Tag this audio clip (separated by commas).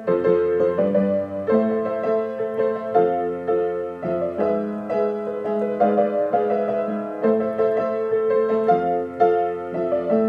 Music, Country